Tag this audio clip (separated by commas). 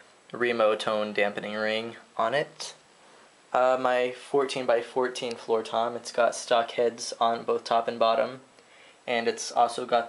Speech